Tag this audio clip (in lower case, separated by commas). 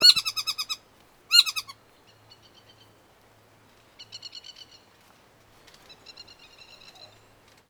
animal, bird, bird vocalization, wild animals